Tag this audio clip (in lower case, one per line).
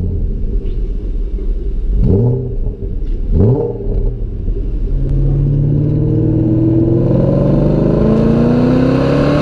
sound effect